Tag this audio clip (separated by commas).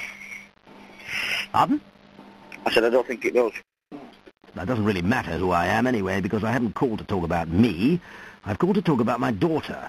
Speech